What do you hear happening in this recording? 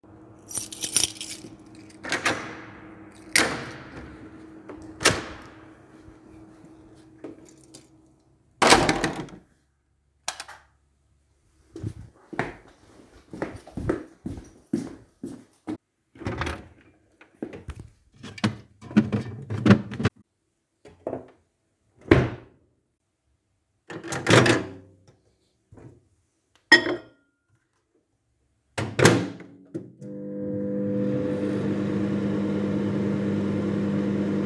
I opened the door using the key and I turned on the light and walked to the kitchen to open the fridge and I looked for my lunch box and after taking it out and closing the fridge I opened the microwave and put it inside and finally turning on the microwave